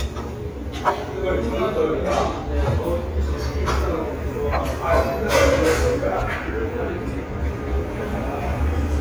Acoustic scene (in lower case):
restaurant